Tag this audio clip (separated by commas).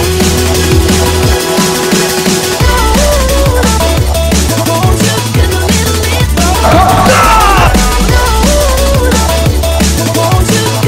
Music, Sampler